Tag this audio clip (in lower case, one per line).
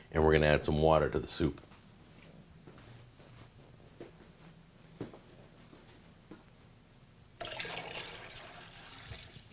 speech
inside a small room